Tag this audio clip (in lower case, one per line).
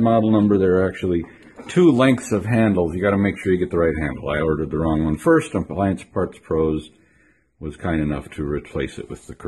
speech